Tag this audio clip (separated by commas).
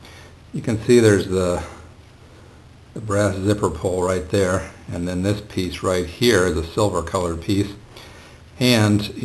Speech